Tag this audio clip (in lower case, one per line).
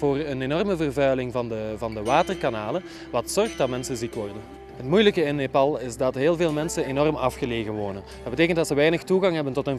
music
speech
tender music